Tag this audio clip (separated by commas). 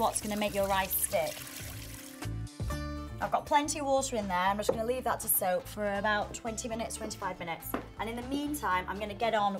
Speech, Music